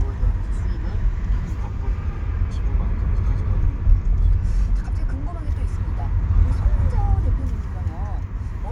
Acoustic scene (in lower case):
car